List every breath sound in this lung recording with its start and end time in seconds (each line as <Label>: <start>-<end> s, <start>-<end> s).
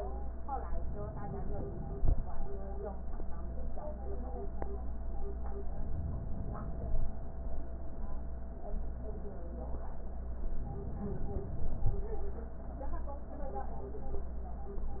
Inhalation: 0.76-2.21 s, 5.72-7.17 s, 10.61-12.06 s